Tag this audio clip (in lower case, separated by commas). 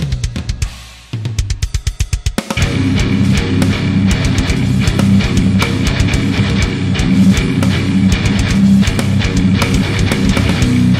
musical instrument, guitar, plucked string instrument, music